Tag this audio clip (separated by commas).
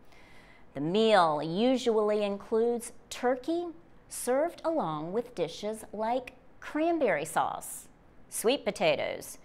Speech